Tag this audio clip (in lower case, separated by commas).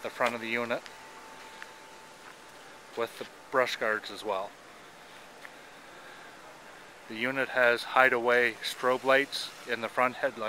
speech